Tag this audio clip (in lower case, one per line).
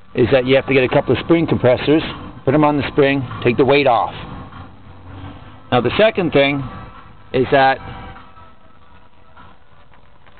speech
music